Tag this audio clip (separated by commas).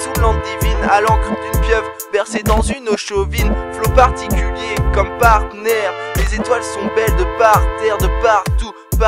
Music